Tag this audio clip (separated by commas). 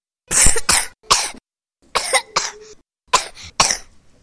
Cough, Respiratory sounds